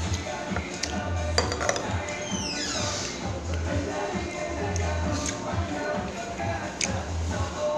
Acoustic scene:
restaurant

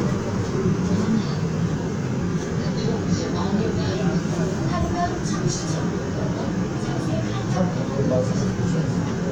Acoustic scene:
subway train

